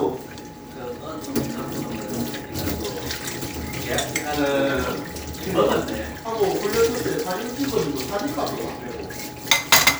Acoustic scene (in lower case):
kitchen